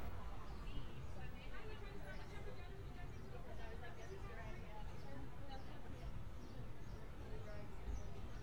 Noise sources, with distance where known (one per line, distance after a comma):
person or small group talking, far